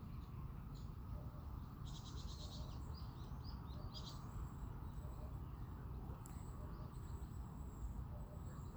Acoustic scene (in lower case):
park